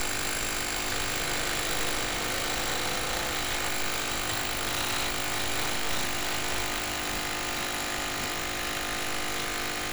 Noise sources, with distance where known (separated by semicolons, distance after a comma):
jackhammer, near